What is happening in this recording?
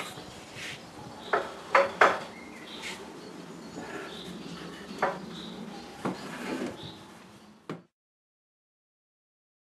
Nature sounds followed by small banging sound